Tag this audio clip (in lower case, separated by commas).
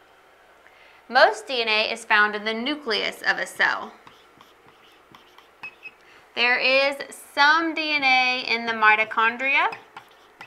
inside a small room, speech